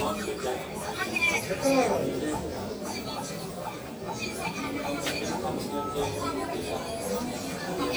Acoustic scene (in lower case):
crowded indoor space